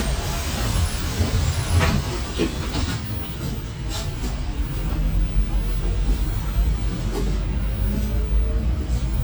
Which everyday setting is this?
bus